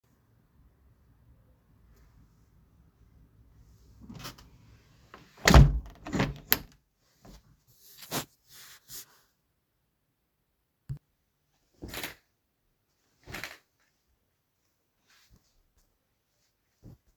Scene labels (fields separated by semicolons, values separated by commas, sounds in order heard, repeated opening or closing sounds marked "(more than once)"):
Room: bedroom; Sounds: window (more than once)